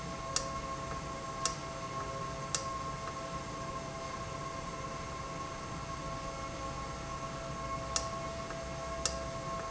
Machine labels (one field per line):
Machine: valve